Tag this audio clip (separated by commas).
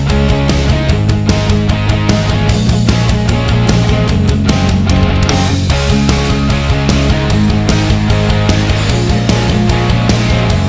Grunge